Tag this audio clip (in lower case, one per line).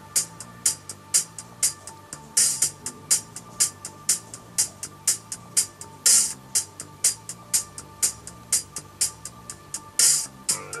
music